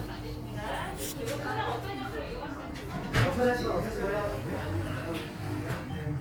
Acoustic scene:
crowded indoor space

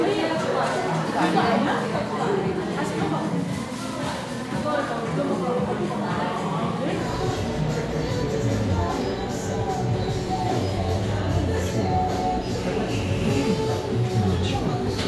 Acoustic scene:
crowded indoor space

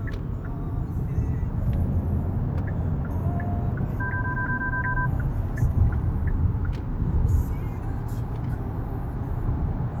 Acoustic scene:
car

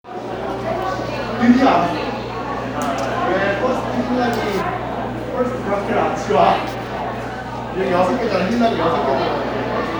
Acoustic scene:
crowded indoor space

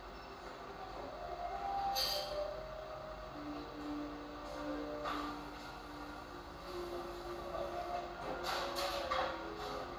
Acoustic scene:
cafe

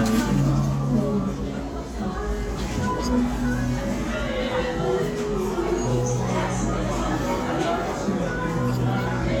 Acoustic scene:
crowded indoor space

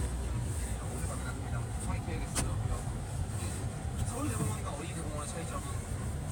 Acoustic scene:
car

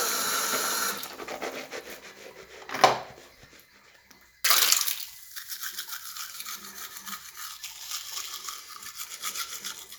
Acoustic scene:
restroom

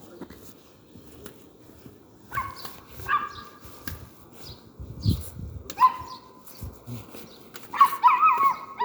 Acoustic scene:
residential area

